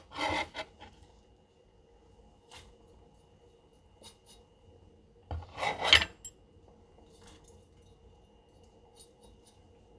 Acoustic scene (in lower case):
kitchen